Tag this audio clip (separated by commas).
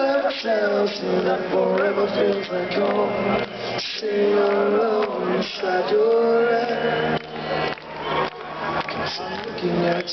Speech, Music